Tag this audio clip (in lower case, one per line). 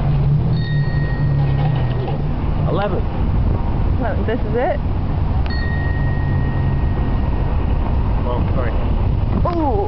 vehicle
speech